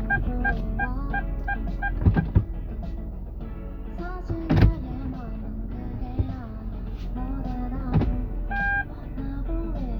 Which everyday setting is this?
car